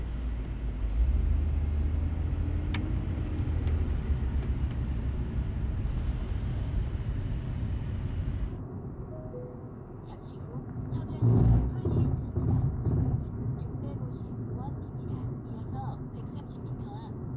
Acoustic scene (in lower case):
car